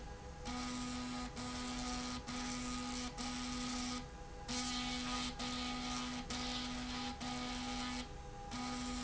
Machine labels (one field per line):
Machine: slide rail